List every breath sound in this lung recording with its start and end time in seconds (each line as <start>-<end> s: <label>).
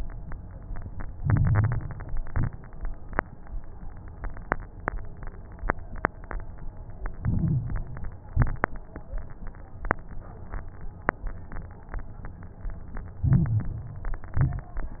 1.14-2.16 s: inhalation
1.14-2.16 s: crackles
2.18-2.84 s: exhalation
2.18-2.84 s: crackles
7.14-8.17 s: inhalation
7.14-8.17 s: crackles
8.28-8.94 s: exhalation
8.28-8.94 s: crackles
13.22-14.25 s: inhalation
13.22-14.25 s: crackles
14.35-15.00 s: exhalation
14.35-15.00 s: crackles